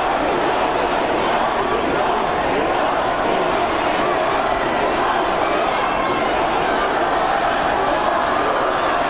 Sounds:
crowd

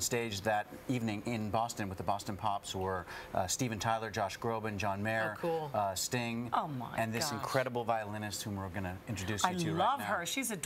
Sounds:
speech

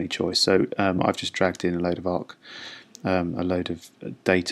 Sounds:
speech

